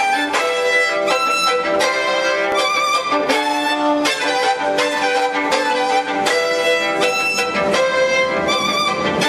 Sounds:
musical instrument, bowed string instrument, fiddle, music

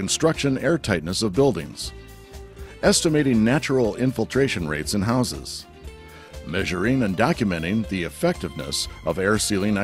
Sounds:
speech, music

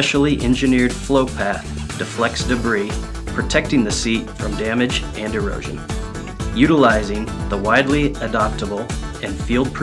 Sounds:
music, speech

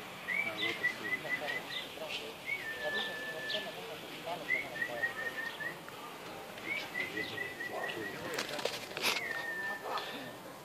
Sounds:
speech, dove

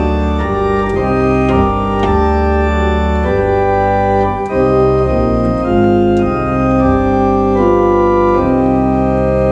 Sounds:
playing electronic organ

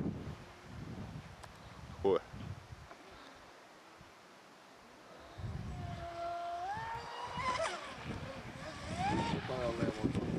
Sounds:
motorboat, water vehicle, wind noise (microphone), wind

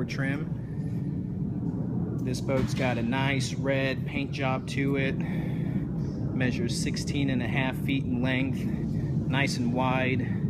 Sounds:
speech

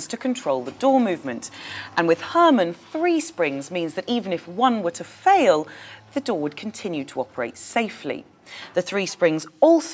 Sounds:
speech

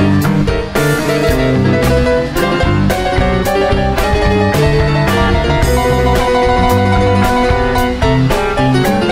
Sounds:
music, blues

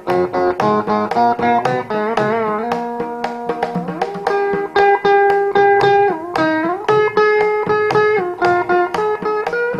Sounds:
carnatic music, musical instrument, plucked string instrument, music

